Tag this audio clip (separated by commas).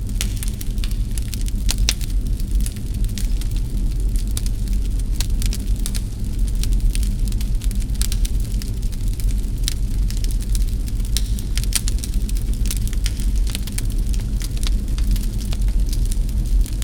Fire